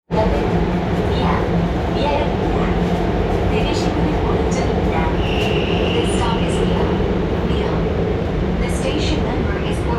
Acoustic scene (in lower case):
subway train